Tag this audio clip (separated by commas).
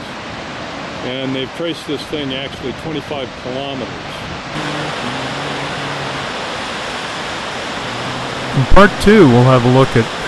Waterfall